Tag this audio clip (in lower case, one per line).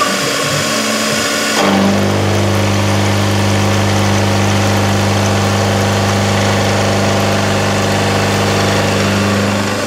tools
power tool